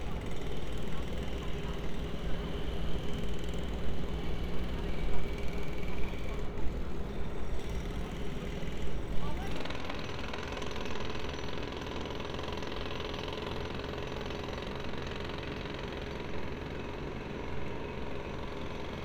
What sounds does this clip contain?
jackhammer